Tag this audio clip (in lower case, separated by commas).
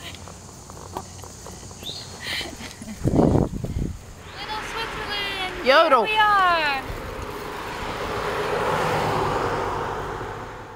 speech, bicycle